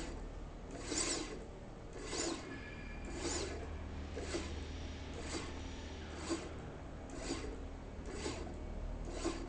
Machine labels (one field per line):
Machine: slide rail